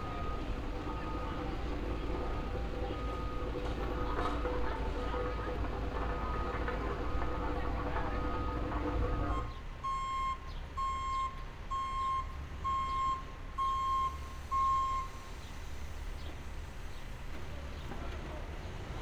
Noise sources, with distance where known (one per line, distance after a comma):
reverse beeper